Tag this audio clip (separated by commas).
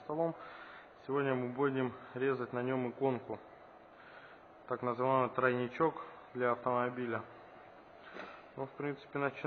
Speech